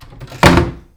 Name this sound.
wooden cupboard closing